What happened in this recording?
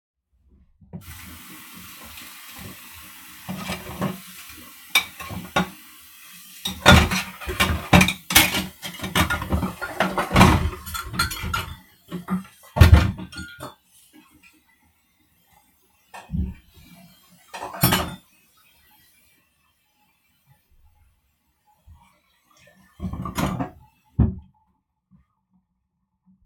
I washed my cutlery in the sink with running water